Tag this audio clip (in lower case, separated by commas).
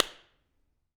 clapping, hands